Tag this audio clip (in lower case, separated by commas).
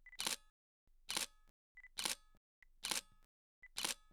camera, mechanisms